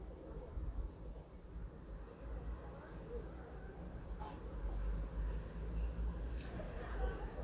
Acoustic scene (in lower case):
residential area